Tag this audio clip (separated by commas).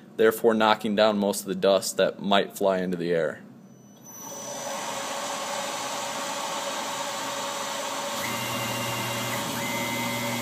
Speech